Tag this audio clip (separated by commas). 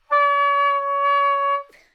woodwind instrument, Musical instrument, Music